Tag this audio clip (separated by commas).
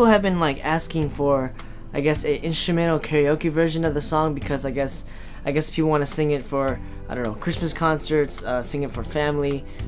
Music, Speech